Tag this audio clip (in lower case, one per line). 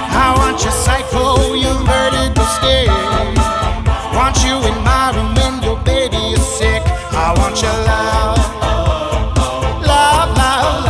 music
reggae
singing